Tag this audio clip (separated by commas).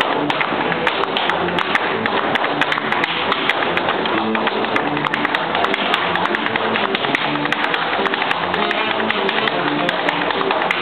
Music, Tap